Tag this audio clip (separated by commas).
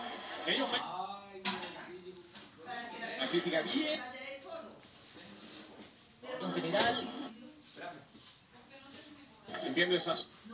Television, Speech